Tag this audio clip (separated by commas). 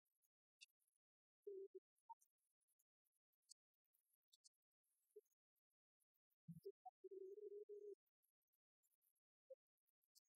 Music, Female singing